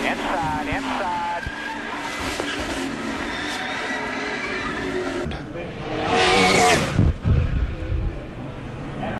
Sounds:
speech

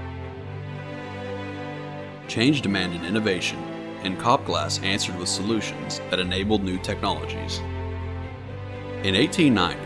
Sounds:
speech
music

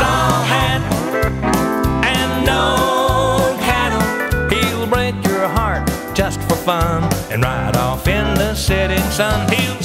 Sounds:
music

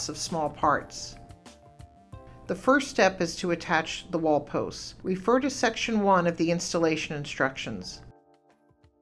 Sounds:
speech
music

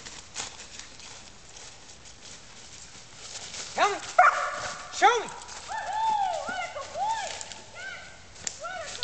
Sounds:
speech

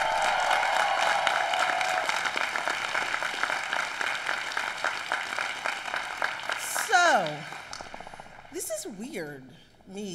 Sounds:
speech
woman speaking
monologue

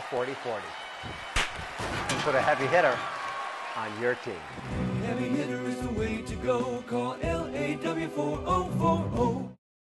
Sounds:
speech
music

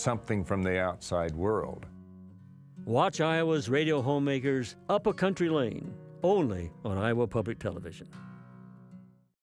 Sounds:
speech

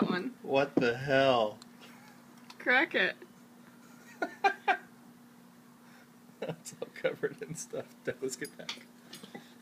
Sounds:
inside a small room
speech

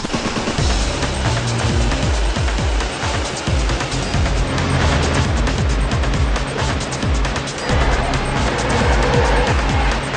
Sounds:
music

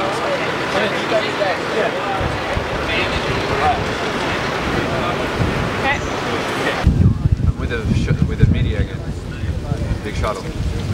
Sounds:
speech
ocean

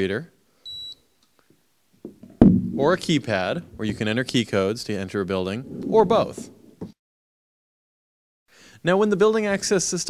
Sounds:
speech

